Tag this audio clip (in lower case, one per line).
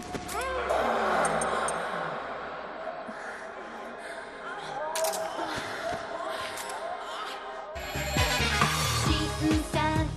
music